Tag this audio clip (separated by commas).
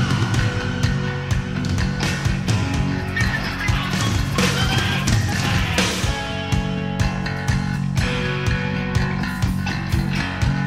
Music, Rock and roll, Rock music